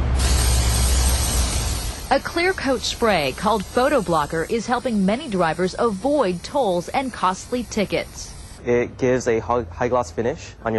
Paint is being sprayed and a woman and then a man speaks